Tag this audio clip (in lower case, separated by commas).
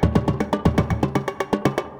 musical instrument, music, drum kit, percussion, drum